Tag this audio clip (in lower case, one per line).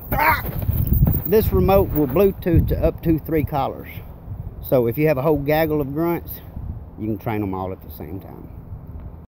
speech